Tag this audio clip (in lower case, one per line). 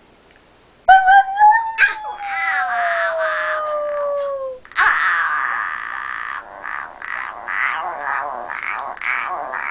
whimper (dog)
dog
howl
bark
pets
canids
animal
yip